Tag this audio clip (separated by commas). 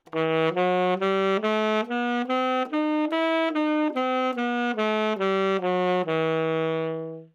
Music, Musical instrument, woodwind instrument